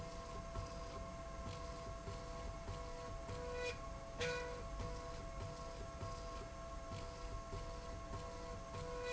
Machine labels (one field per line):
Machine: slide rail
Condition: normal